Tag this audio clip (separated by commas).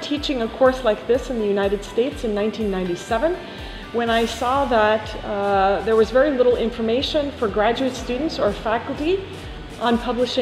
Speech, Music